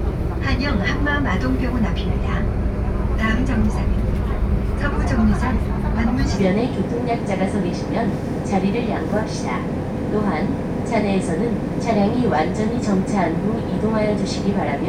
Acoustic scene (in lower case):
bus